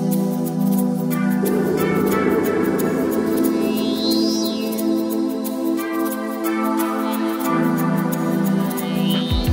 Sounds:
Music

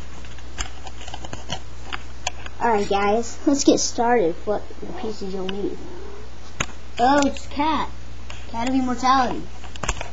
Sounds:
Speech, inside a small room

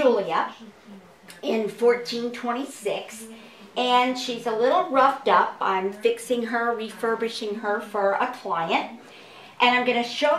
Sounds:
Speech

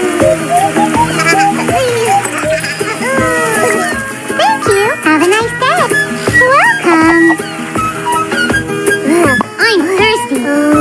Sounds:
ice cream truck

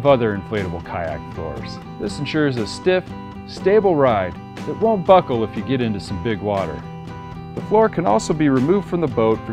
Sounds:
Speech, Music

